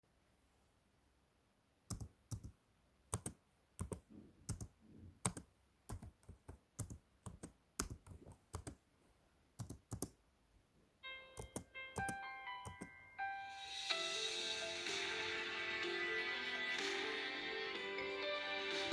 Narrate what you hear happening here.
I started typing a paragraph on my laptop keyboard. While I was typing, the phone began to ring on the desk right next to me. I continued typing for a few seconds while the phone was still ringing.